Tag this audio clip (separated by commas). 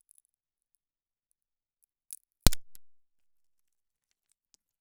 Crack